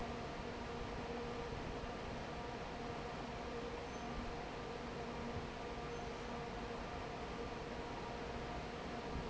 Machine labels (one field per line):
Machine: fan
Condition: normal